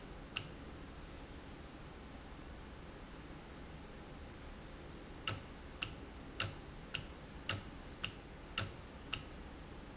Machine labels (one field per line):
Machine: valve